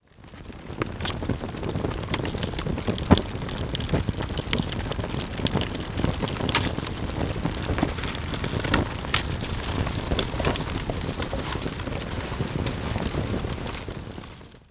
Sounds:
fire

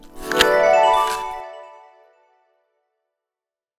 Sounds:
chime, bell

